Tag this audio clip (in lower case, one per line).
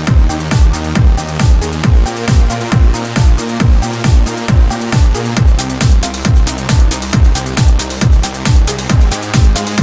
music